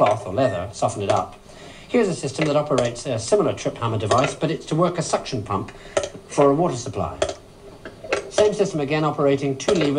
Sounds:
speech

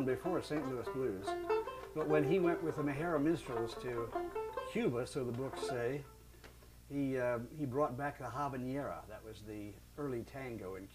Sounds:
music, speech

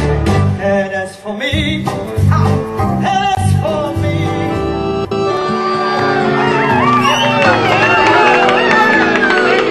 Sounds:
inside a large room or hall, music

